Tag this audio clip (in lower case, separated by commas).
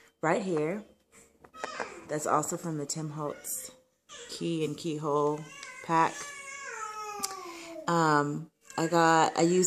speech, people babbling, inside a small room, babbling